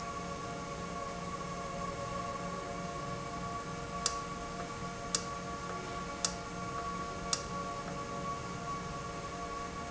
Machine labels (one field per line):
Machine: valve